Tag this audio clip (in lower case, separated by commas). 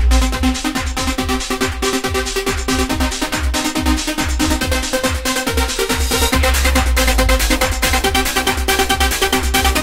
music, trance music